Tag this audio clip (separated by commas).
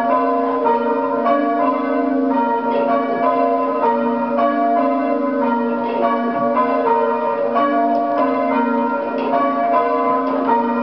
Change ringing (campanology)